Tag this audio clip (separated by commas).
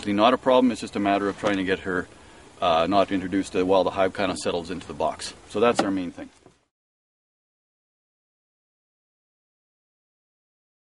Speech